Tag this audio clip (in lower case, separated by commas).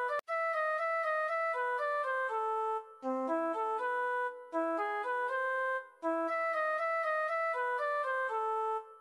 music, musical instrument